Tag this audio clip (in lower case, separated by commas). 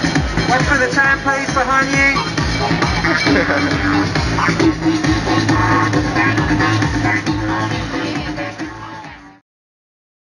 electronic music, techno, speech, music